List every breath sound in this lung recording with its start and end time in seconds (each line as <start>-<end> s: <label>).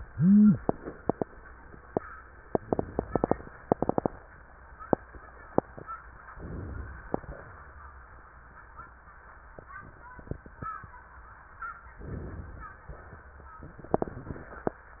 6.25-7.06 s: inhalation
7.06-7.52 s: exhalation
11.96-12.82 s: inhalation
12.84-13.22 s: exhalation